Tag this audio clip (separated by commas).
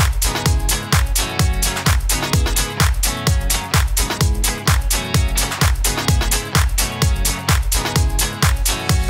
Music